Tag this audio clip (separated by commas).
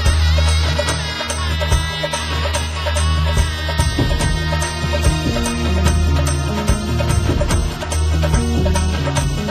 Traditional music, Music